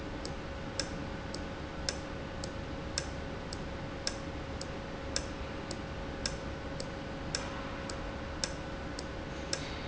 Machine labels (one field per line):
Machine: valve